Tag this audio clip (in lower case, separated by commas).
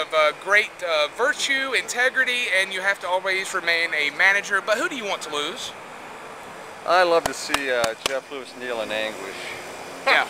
speech